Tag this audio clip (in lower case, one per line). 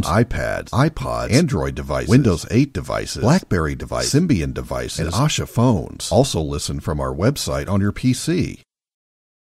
speech